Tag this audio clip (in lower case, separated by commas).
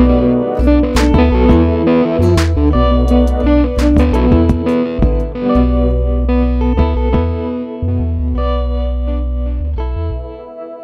aircraft, music